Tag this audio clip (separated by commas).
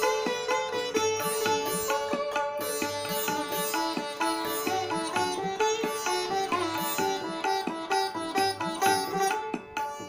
playing sitar